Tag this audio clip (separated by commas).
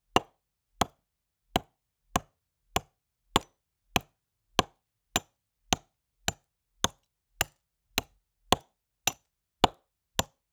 Wood